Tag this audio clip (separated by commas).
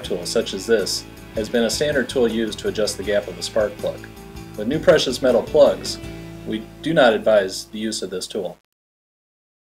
Music, Speech